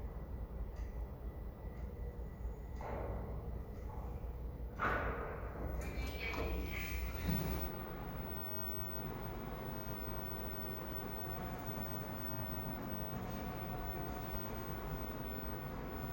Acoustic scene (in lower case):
elevator